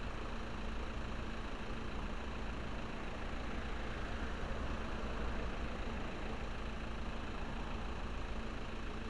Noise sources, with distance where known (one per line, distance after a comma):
engine of unclear size, near